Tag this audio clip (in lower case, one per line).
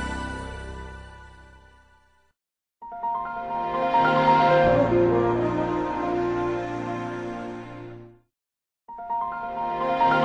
music
sound effect